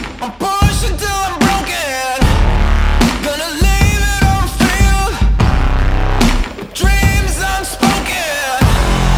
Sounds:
music, sound effect, reverberation

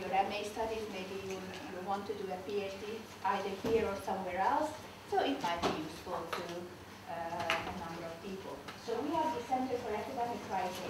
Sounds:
speech

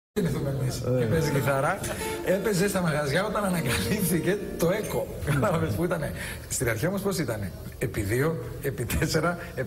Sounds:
laughter, speech, music

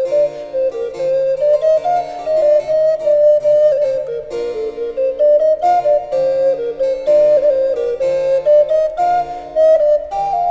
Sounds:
playing harpsichord

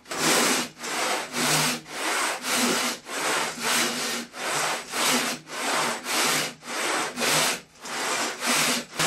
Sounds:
wood, sawing

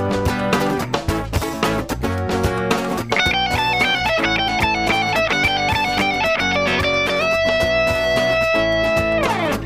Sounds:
strum, guitar, music, electric guitar, plucked string instrument, acoustic guitar, musical instrument

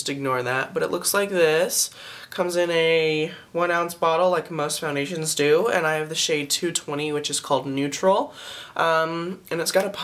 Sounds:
speech

